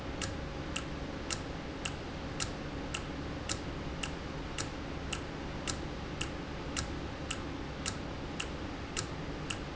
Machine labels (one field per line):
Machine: valve